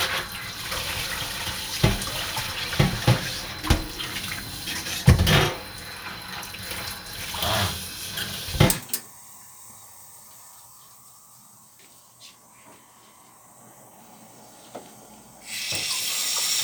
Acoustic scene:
kitchen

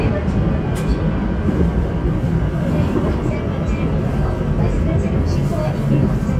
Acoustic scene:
subway train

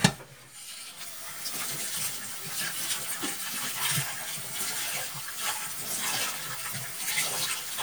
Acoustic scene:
kitchen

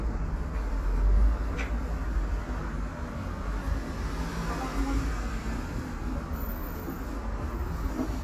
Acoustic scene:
bus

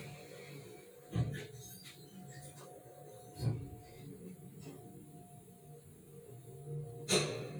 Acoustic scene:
elevator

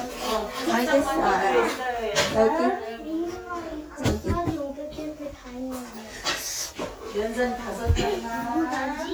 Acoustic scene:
crowded indoor space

